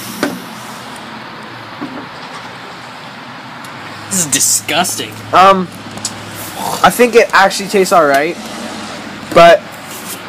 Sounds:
outside, urban or man-made, Speech

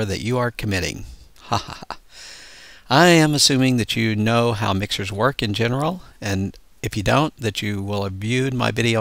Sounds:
Speech

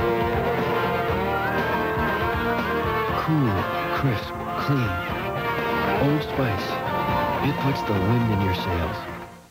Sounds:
Speech, Music

